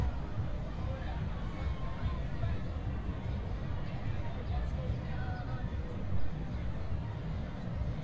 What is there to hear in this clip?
music from an unclear source, person or small group talking